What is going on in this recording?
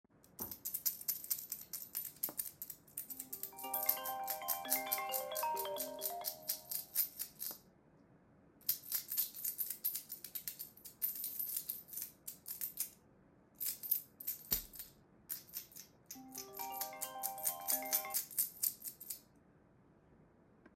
I played around with my KeyChain, after a bit my phone rang, sounds were overlapping, phone stopped ringing, continued to play with the keychain and phone rang again, but with a different volume.